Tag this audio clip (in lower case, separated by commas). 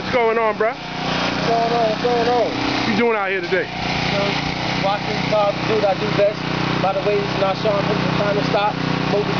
vehicle, speech